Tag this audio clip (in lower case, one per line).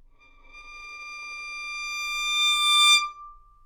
bowed string instrument
musical instrument
music